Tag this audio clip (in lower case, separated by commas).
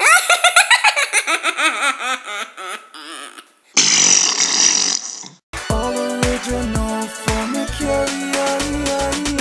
fart, music